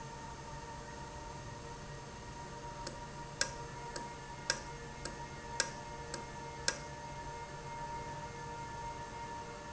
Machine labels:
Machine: valve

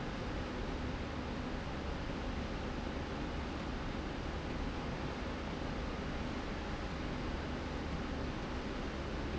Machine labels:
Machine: slide rail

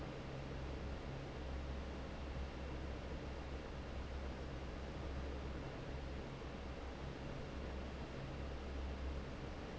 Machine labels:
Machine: fan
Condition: normal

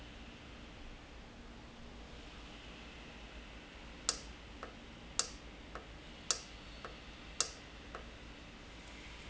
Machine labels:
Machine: valve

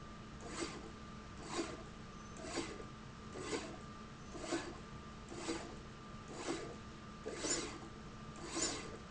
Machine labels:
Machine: slide rail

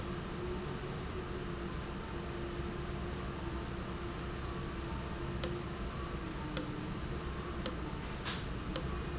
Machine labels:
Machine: valve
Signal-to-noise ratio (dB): -6 dB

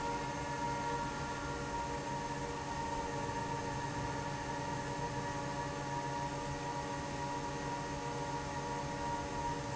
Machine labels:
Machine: fan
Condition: normal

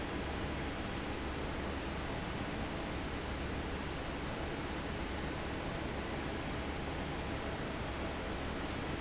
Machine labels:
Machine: fan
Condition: normal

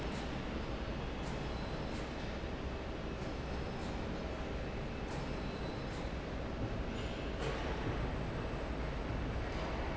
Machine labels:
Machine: fan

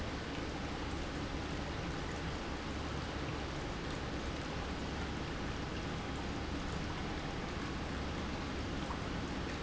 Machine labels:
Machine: pump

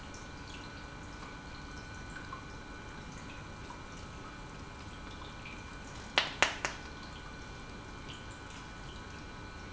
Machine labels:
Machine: pump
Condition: normal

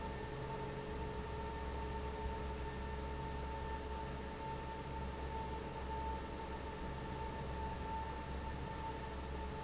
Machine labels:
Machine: fan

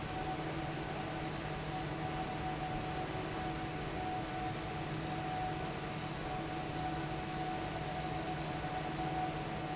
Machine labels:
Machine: fan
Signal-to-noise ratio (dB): -6 dB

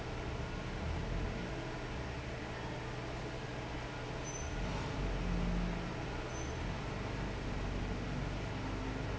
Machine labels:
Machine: fan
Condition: normal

